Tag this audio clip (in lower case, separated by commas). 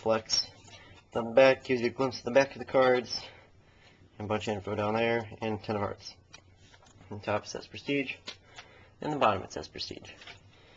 speech